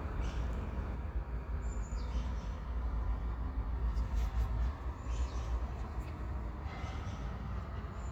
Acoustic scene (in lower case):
park